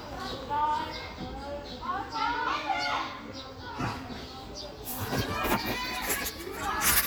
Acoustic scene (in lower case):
park